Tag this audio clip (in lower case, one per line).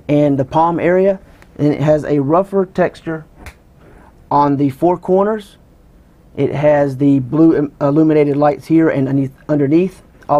speech